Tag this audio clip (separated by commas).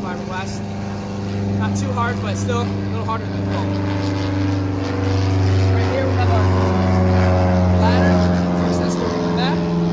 airscrew, Vehicle